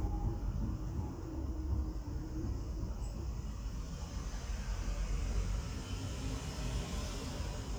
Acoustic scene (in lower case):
residential area